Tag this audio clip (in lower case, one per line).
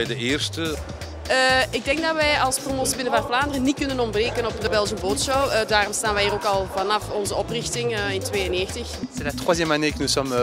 speech
music